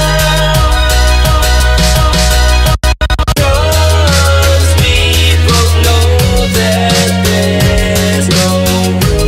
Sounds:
music

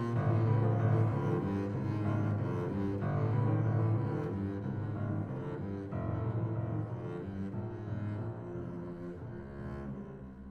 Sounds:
playing double bass

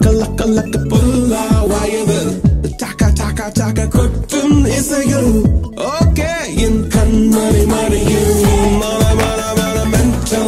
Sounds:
music of africa

